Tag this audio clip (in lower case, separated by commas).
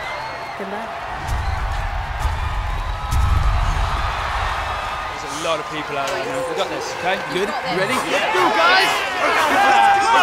speech, music